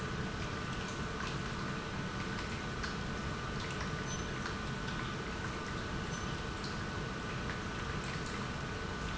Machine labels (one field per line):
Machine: pump